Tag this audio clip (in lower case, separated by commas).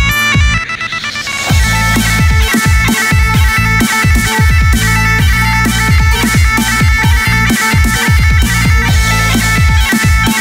playing bagpipes